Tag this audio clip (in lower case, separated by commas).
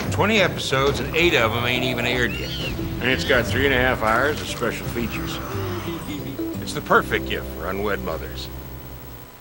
music, speech